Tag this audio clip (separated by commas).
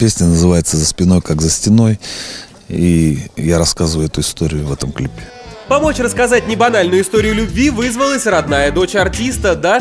Music, Speech